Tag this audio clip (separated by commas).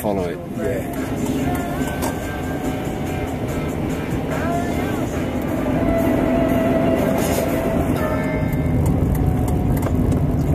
Music, Speech